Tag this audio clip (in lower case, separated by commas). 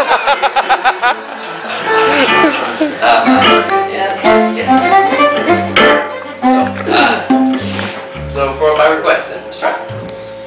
speech, music